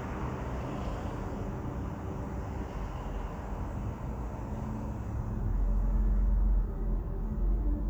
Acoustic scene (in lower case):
residential area